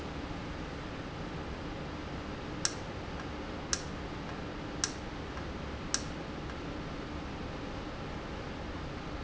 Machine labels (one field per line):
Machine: valve